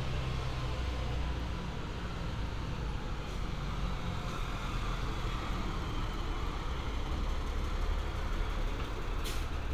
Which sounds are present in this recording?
large-sounding engine